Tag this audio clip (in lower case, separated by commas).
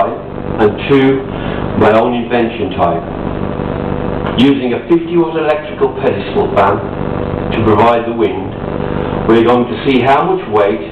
wind noise (microphone), speech